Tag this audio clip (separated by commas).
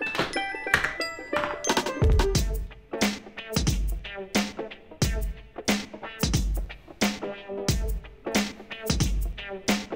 Music